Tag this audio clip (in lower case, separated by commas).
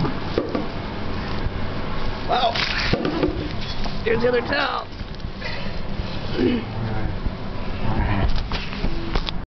speech